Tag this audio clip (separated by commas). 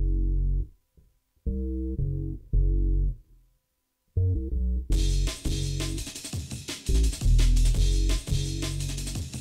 Musical instrument, Guitar, Music, Plucked string instrument